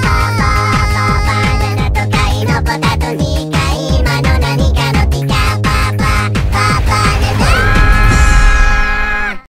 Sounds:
Electronic music, Music

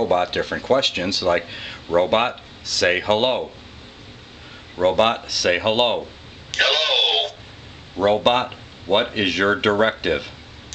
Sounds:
Speech

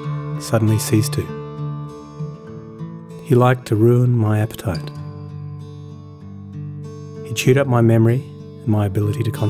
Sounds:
Music, Speech

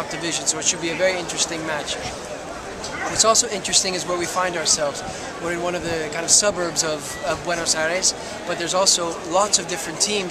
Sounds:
Speech

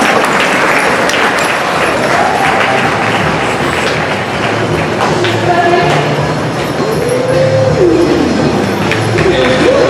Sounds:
Speech

